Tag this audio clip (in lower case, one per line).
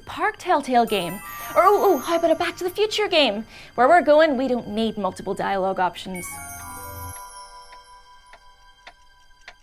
music
speech